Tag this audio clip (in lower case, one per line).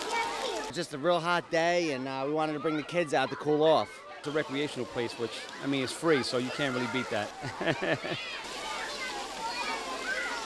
speech